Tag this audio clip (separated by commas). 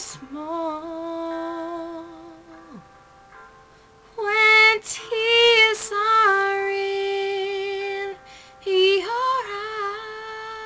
Music, Female singing